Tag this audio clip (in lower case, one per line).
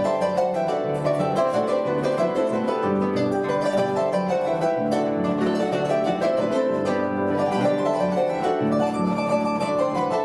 music